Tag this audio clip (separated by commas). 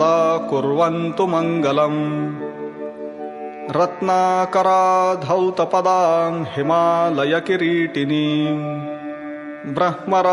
Mantra, Music